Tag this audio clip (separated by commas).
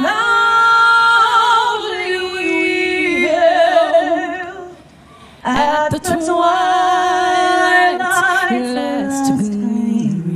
Female singing